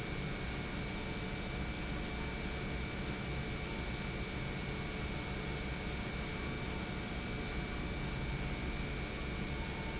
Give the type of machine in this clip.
pump